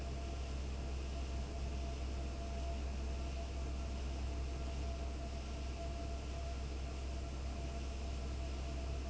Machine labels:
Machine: fan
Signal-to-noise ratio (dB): 6 dB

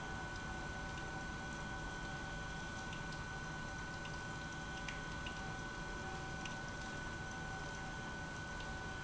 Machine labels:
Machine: pump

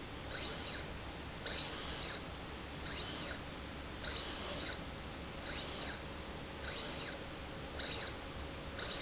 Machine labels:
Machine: slide rail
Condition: abnormal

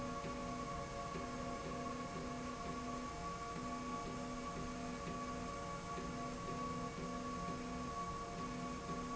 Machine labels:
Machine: slide rail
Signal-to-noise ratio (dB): 0 dB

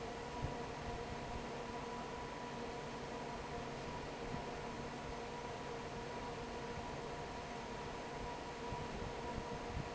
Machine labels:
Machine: fan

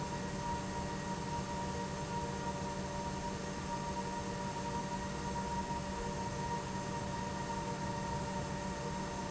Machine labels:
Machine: pump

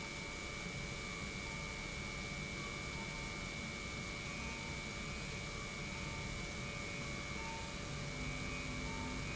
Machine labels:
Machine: pump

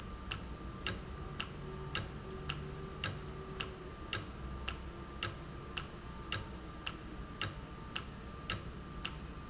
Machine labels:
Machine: valve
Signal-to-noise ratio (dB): 0 dB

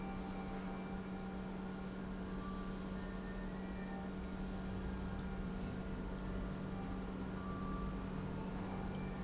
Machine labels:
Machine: pump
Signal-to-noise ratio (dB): 0 dB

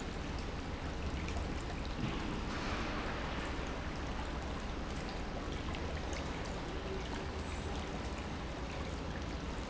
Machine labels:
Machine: pump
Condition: normal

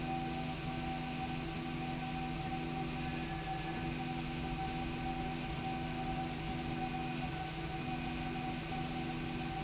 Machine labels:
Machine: slide rail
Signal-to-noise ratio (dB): -6 dB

